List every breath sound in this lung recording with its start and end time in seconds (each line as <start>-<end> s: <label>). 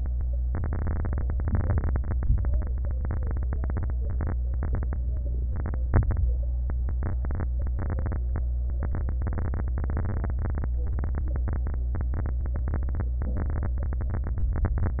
1.35-2.16 s: inhalation
2.14-2.73 s: exhalation